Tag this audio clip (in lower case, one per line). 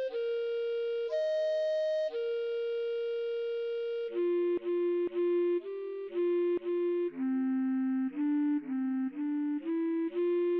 musical instrument
music